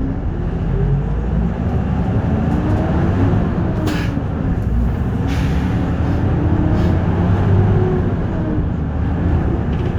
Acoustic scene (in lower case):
bus